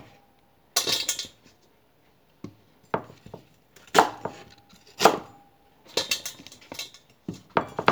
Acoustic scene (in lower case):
kitchen